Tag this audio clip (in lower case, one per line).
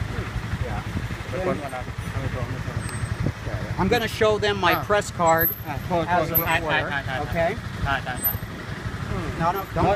vehicle
outside, urban or man-made
car
speech